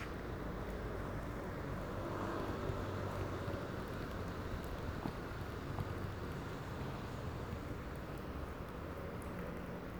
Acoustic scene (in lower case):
residential area